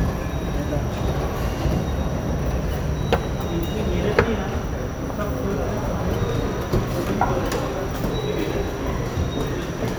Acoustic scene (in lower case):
subway station